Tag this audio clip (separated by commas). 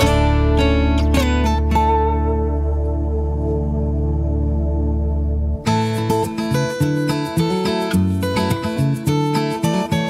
Music